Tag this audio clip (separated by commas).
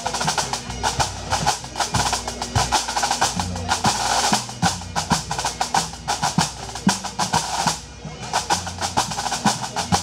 Drum, Musical instrument, Music